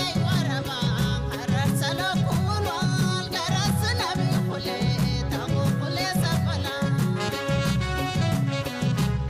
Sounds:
folk music, music

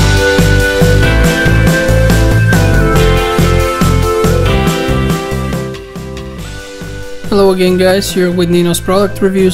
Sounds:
speech, music

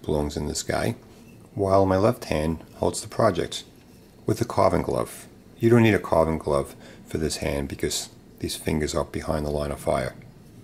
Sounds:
speech

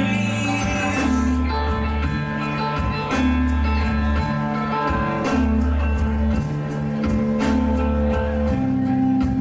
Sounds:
music, string section

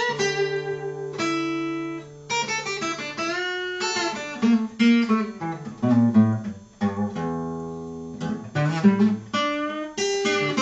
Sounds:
acoustic guitar, music, strum, guitar, musical instrument, plucked string instrument

